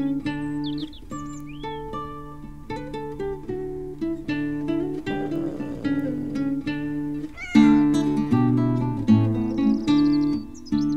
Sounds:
animal, pets, music, cat, meow

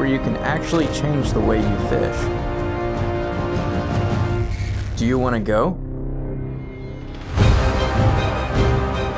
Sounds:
theme music

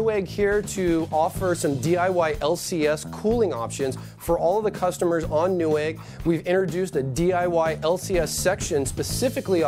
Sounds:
speech, music

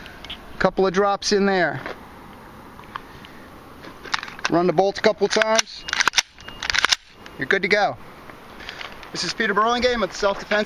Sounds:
outside, urban or man-made, speech

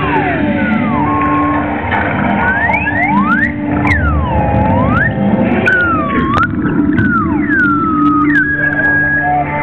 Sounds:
flute, gurgling, music

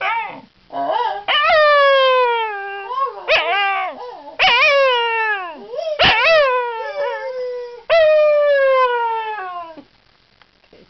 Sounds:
dog howling

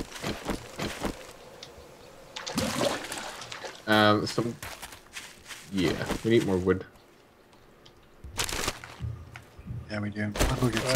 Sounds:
speech

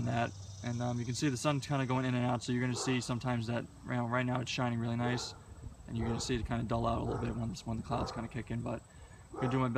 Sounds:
speech

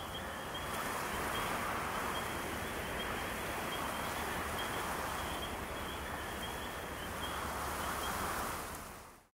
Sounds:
rustling leaves

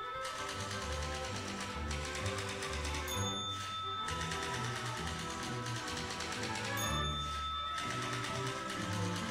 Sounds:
typing on typewriter

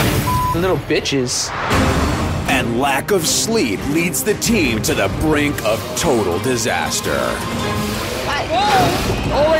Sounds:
music, speech

